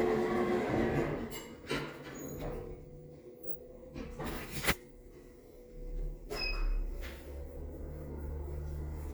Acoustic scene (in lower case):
elevator